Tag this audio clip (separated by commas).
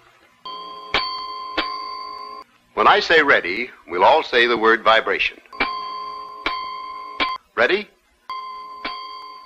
Speech